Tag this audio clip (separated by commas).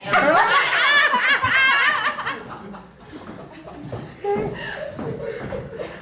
Human voice, Laughter